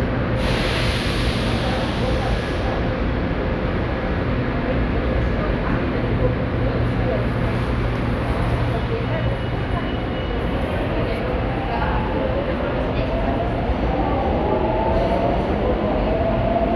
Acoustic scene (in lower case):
subway station